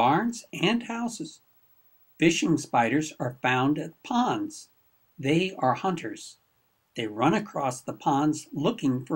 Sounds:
inside a small room
speech
monologue

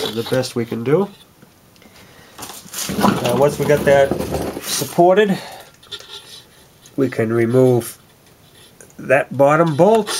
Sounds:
speech

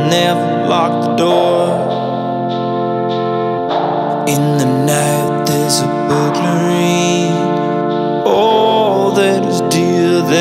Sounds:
music

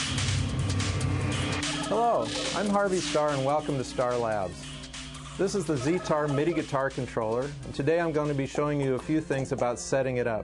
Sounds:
speech
music

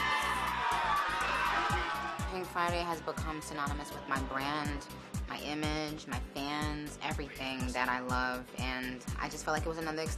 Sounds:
speech
music

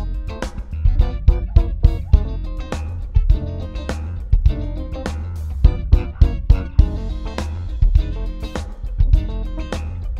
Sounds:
music

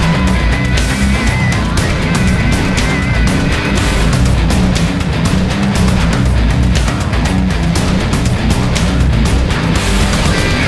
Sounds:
music

